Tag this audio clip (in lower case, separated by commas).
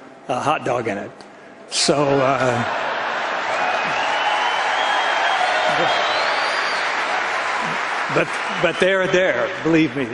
monologue, man speaking, speech